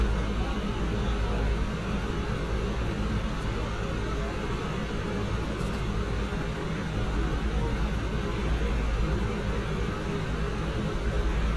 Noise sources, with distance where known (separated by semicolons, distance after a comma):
medium-sounding engine, near